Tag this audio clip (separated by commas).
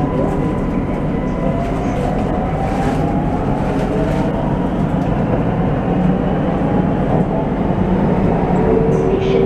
subway